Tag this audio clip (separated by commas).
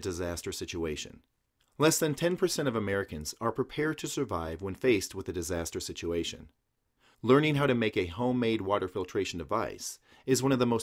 Speech